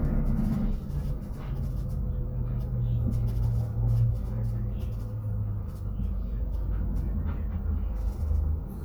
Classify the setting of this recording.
bus